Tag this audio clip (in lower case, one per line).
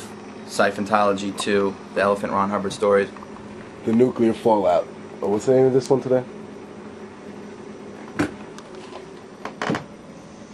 speech